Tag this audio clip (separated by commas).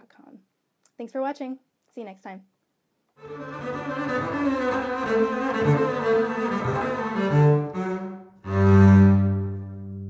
playing double bass